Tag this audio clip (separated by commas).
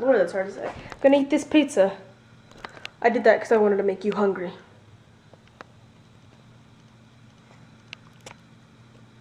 Speech